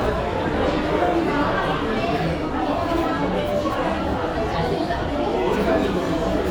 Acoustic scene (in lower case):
restaurant